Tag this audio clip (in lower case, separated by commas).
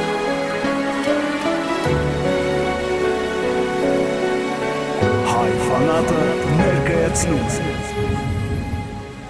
speech, music